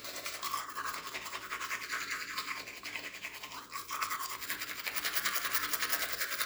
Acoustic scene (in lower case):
restroom